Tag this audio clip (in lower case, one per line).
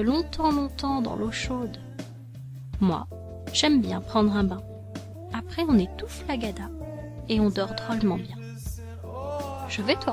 music
speech